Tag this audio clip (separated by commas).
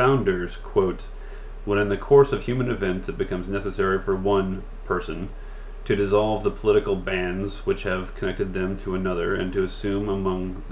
Music